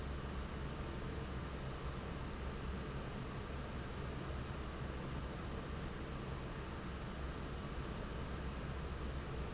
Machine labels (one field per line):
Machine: fan